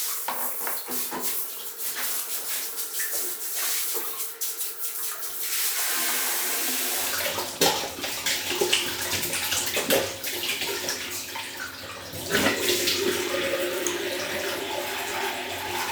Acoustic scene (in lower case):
restroom